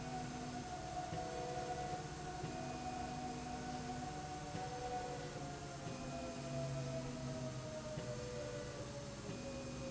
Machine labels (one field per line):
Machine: slide rail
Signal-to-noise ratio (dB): 0 dB